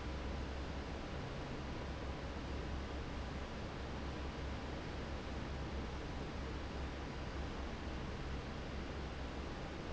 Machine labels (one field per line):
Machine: fan